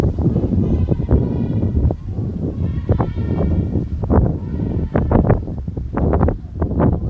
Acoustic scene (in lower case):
residential area